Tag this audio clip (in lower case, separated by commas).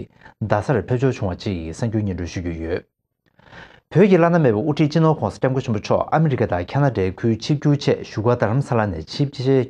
speech